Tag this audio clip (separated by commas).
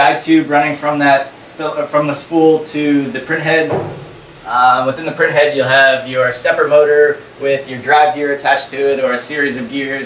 Speech